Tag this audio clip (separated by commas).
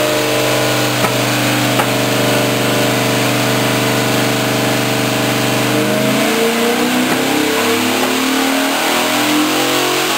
Engine, Vehicle, vroom